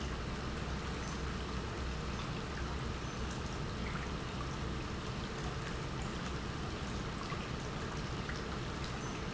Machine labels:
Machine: pump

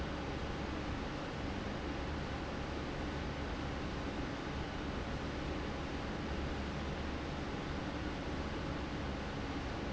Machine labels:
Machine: fan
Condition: abnormal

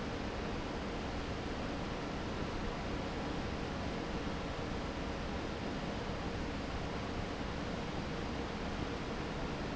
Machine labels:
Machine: fan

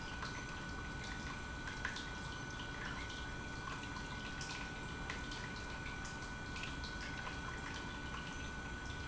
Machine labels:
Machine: pump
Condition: normal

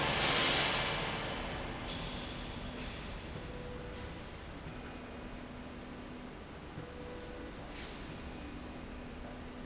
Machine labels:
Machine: slide rail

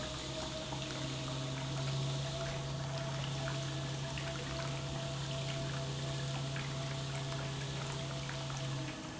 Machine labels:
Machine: pump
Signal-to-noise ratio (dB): -6 dB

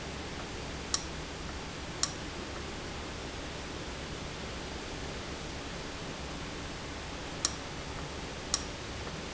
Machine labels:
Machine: valve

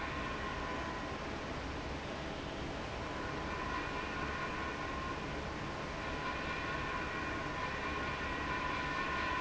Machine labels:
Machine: fan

